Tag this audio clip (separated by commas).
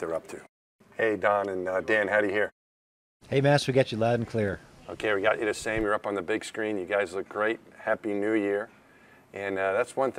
Speech